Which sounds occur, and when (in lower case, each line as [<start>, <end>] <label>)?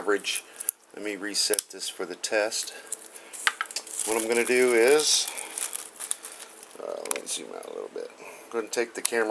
[0.00, 0.45] man speaking
[0.00, 9.30] mechanisms
[0.38, 0.69] breathing
[0.61, 0.72] tick
[0.94, 1.56] man speaking
[1.50, 1.65] tick
[1.72, 2.11] man speaking
[2.23, 2.65] man speaking
[2.59, 3.19] generic impact sounds
[2.60, 3.41] breathing
[3.34, 3.73] generic impact sounds
[3.87, 5.84] crinkling
[4.05, 5.23] man speaking
[5.20, 5.81] breathing
[6.00, 6.65] crinkling
[6.02, 6.56] breathing
[6.76, 8.11] man speaking
[6.95, 7.20] generic impact sounds
[7.54, 7.71] generic impact sounds
[8.14, 8.50] breathing
[8.48, 9.30] man speaking
[8.97, 9.10] tick